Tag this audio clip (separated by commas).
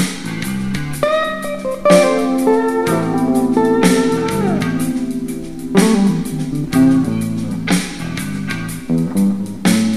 Sound effect, Music